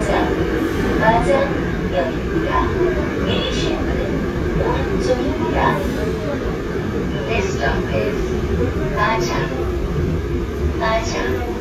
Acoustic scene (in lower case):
subway train